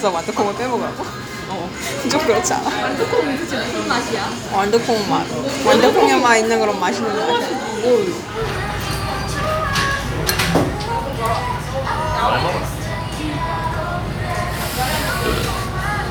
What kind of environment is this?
restaurant